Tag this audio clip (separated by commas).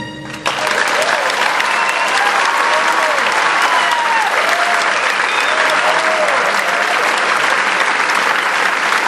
Applause, Music, people clapping